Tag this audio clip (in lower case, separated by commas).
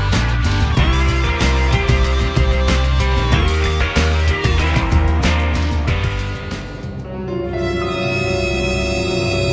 music